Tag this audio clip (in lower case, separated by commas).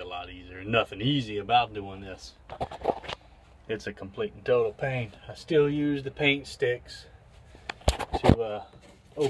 speech